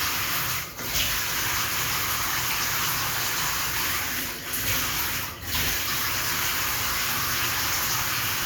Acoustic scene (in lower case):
restroom